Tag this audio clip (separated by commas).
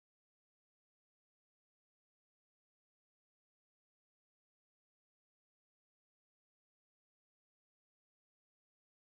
playing ukulele